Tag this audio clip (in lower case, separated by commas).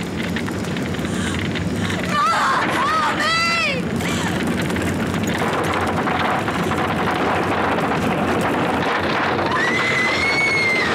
speech